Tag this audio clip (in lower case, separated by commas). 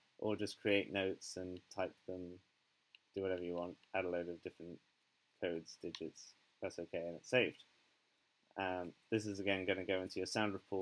speech